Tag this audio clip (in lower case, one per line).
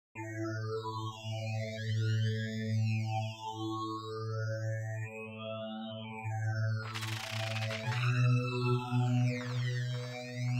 music